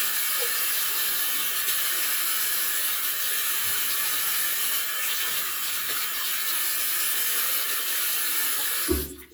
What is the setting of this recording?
restroom